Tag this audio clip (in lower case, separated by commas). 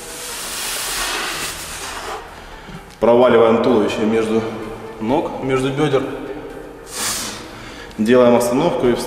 music, speech